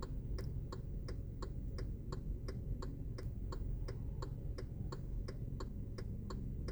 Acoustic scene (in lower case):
car